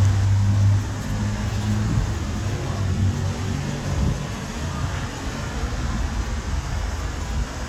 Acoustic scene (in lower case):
street